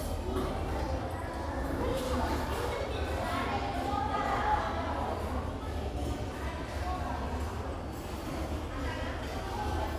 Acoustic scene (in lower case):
restaurant